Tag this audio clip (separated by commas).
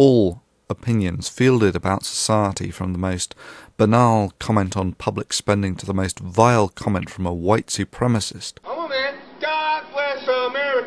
Speech, man speaking